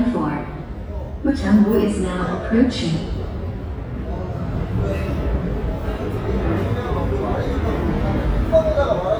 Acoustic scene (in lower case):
subway station